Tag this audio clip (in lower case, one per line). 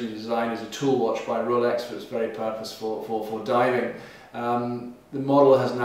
speech